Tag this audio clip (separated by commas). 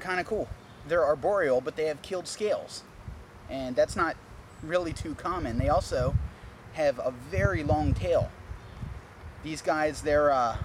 Speech, outside, rural or natural